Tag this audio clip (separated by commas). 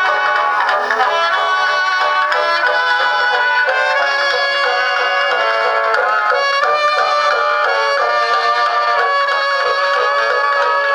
inside a small room, Music